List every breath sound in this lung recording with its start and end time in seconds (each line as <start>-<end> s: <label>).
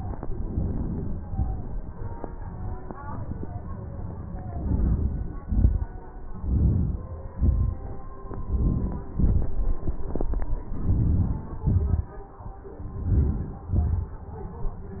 4.60-5.22 s: inhalation
5.51-5.88 s: exhalation
6.40-7.08 s: inhalation
7.39-7.83 s: exhalation
8.55-9.07 s: inhalation
9.21-9.76 s: exhalation
10.85-11.51 s: inhalation
11.65-12.13 s: exhalation
13.11-13.71 s: inhalation
13.80-14.24 s: exhalation